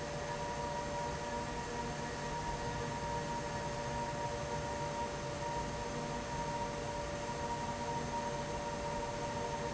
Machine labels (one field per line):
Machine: fan